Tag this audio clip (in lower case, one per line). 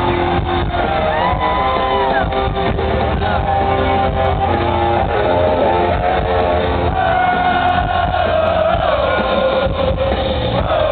music